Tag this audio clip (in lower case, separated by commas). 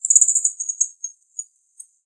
wild animals, bird vocalization, bird, animal